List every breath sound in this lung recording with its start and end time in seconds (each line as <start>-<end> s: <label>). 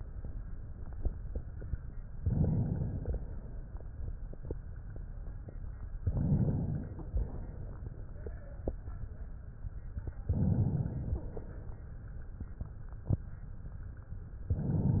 2.16-3.31 s: inhalation
5.97-7.11 s: inhalation
7.11-8.21 s: exhalation
10.23-11.24 s: inhalation
10.98-11.23 s: wheeze
11.25-12.76 s: exhalation